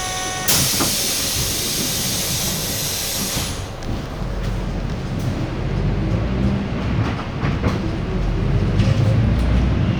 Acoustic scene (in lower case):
bus